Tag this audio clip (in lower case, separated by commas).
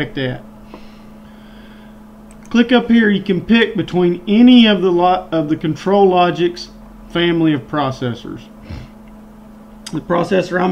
speech